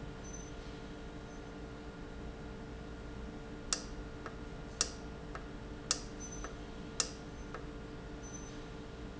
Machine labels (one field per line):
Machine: valve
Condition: normal